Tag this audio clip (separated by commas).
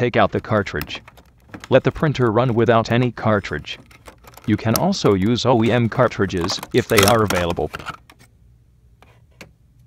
Speech